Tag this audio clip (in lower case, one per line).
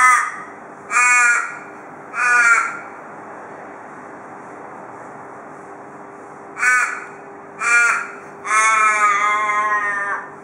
crow cawing